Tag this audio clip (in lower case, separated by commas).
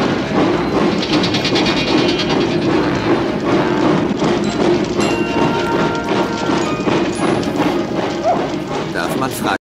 idling, heavy engine (low frequency), music, engine, vehicle, speech